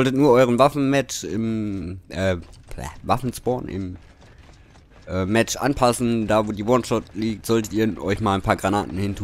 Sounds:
Speech

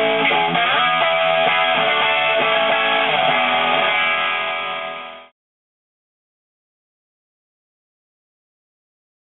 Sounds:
Music

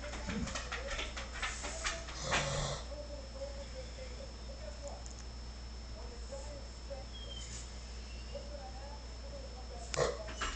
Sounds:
Animal, Speech, pets

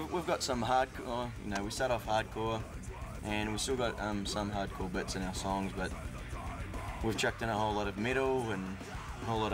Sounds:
Speech, Music, Background music

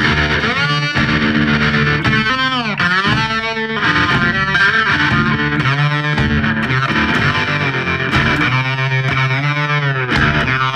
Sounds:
slide guitar

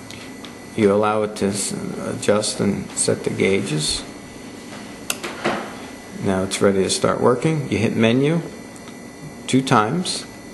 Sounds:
Speech

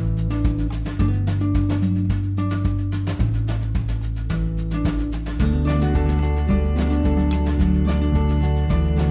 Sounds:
Music

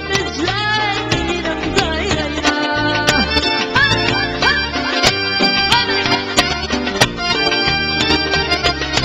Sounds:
Music, Wedding music

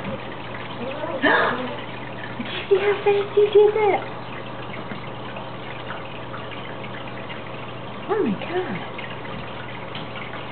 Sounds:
Speech

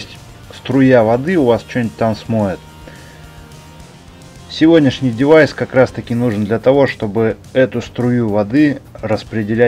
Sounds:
Music, Speech

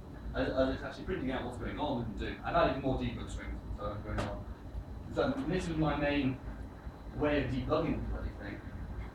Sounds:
Speech

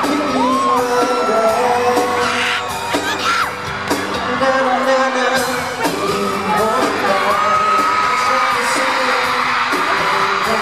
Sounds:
Singing, Whoop, Pop music, Music

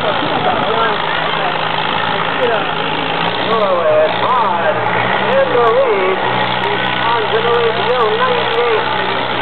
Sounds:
Speech

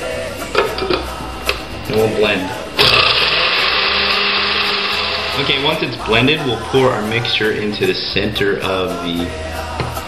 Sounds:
Blender

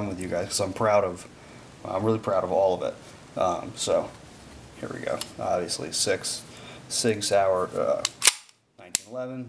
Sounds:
Speech, inside a small room

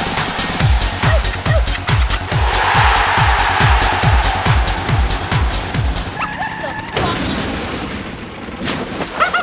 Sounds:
Music

